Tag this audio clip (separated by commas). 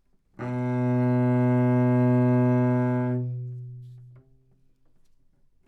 Musical instrument, Bowed string instrument, Music